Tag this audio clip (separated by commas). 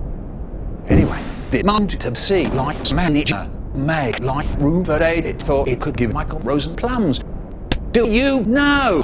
Speech